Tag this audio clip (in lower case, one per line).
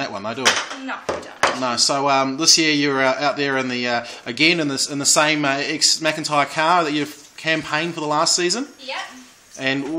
speech